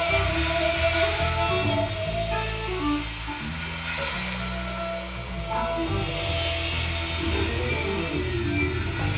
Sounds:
Music

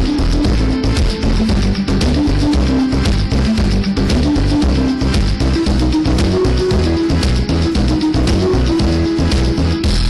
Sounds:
Music

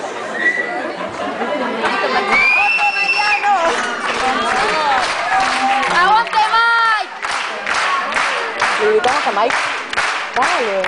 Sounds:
Speech

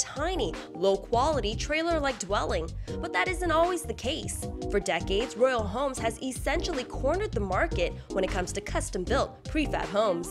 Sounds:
Speech, Music

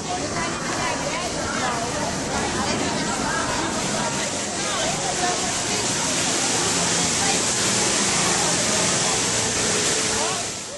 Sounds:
Slosh, outside, urban or man-made, Speech, sloshing water

